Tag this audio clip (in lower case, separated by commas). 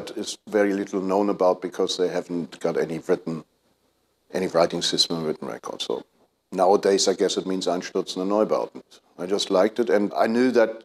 speech